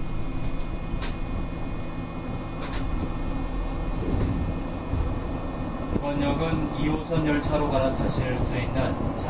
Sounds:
speech, rail transport

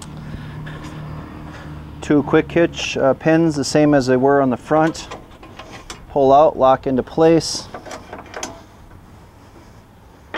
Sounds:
speech, vehicle

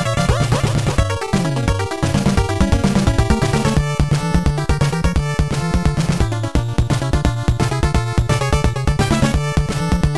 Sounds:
video game music, music

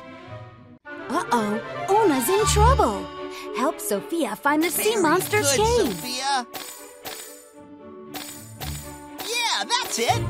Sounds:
music, speech

